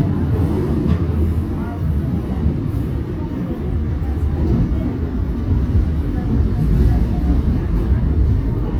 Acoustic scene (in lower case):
subway train